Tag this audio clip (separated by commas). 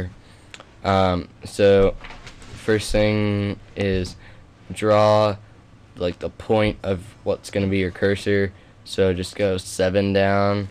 Speech